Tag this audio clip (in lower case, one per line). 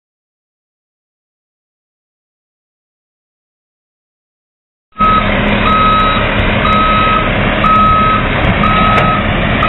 reversing beeps
truck
vehicle